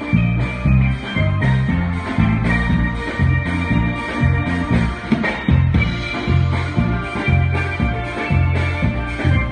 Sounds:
playing steelpan

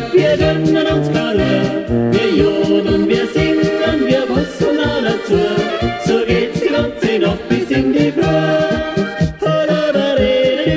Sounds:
yodelling

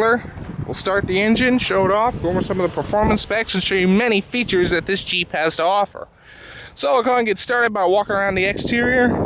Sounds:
Speech

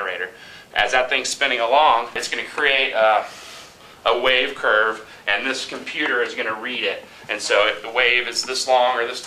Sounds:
Speech

